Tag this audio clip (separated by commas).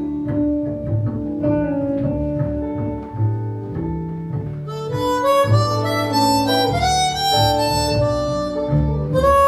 Music, Musical instrument, Harmonica, Guitar